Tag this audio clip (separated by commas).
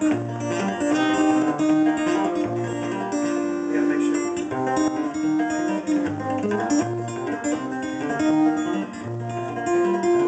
Speech, Music